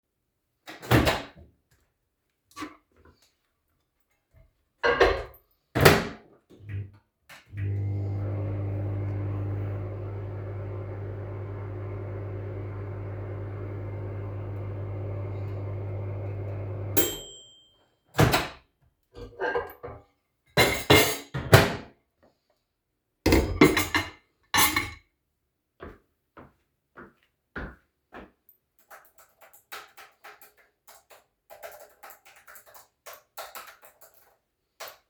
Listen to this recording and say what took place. I placed a plate with food in the microwave. After the food was heated, I took the plate, walked to my computer and place the dish on the desk, so I can finish typing my essay.